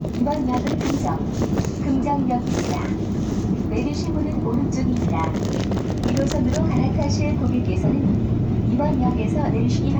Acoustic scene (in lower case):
subway train